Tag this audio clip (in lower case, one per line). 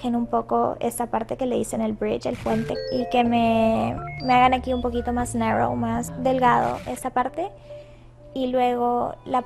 speech
music